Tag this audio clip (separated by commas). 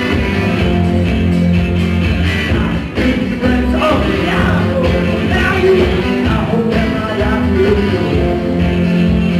Music